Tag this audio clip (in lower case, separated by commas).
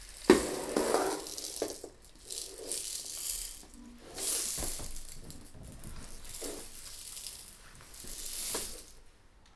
music, rattle (instrument), percussion, musical instrument